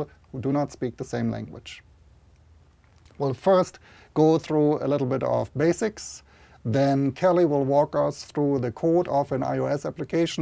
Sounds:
man speaking, Speech

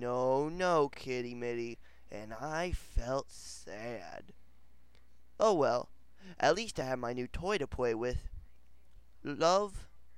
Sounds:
Speech

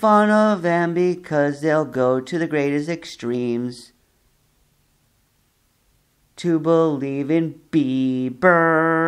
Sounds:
Music

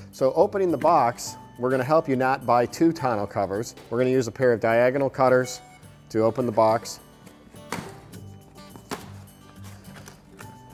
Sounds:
Speech, Music

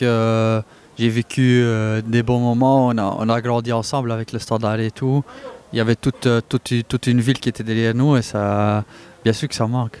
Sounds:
Speech

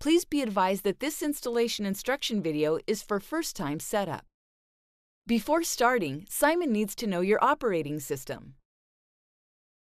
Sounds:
Speech

